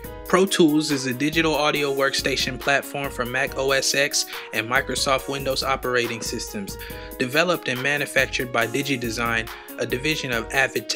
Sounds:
Music, Speech

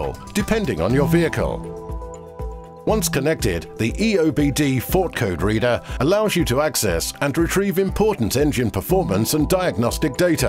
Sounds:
Speech, Music

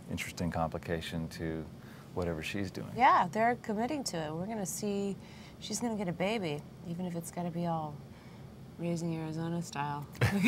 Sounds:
Speech, inside a small room

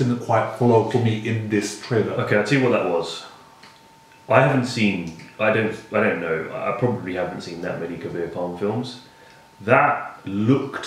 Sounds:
Speech, inside a small room

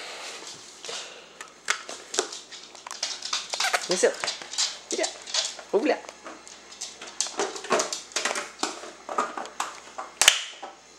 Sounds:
Speech

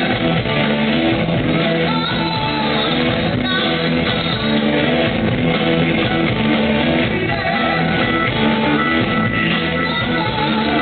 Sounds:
Rock music, Singing, Music

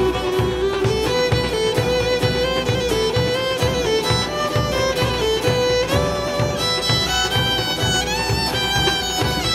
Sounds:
Music, Background music

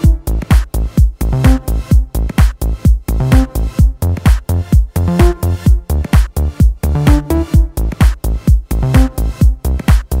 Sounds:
Soundtrack music, Music, Blues

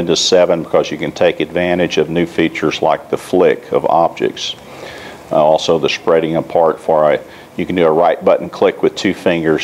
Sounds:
Speech

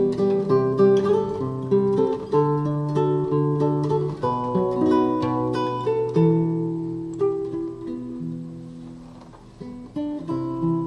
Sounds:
Guitar, Plucked string instrument, Strum, Musical instrument, Music

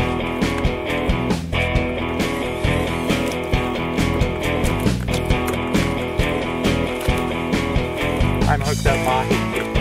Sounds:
Music, Speech

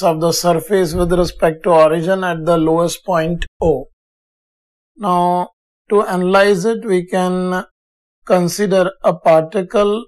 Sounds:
Speech

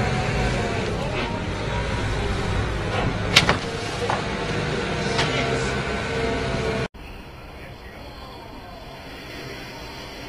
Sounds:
Vehicle, Speech, Water vehicle, Motorboat

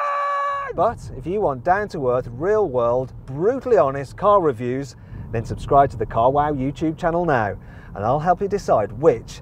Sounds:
Car, Vehicle, Speech

